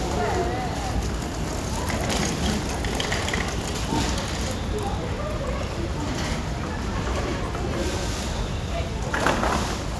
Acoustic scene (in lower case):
residential area